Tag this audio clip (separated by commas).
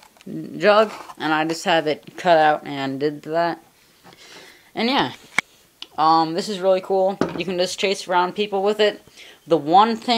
inside a small room, Speech